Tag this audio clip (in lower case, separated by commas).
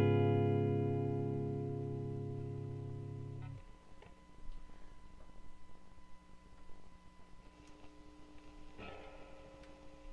music, bass guitar